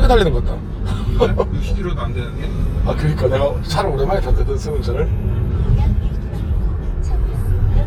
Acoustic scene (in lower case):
car